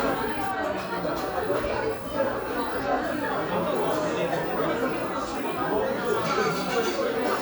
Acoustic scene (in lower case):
crowded indoor space